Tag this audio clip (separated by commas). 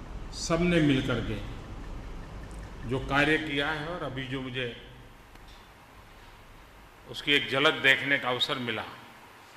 man speaking, Narration, Speech